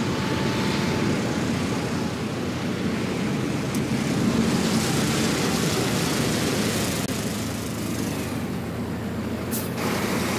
A vehicle passing and the general muffled sound of traffic from inside a stationery vehicle